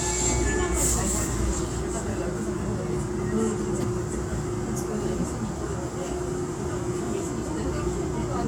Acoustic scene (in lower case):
subway train